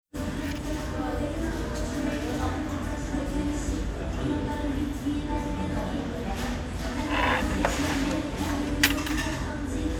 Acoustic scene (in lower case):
restaurant